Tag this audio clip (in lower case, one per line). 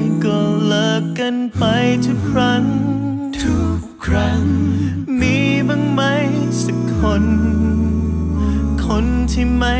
music
independent music